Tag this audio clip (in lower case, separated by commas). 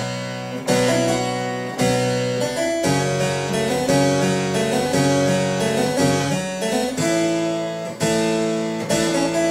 playing harpsichord